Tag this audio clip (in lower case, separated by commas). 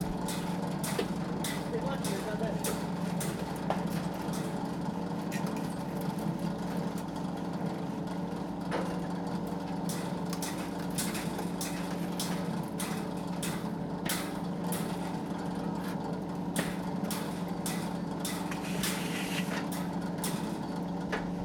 tools, hammer